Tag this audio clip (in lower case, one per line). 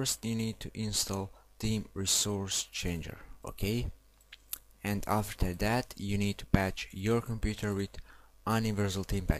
speech